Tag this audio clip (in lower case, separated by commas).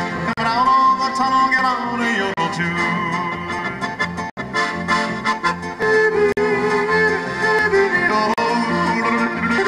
music, yodeling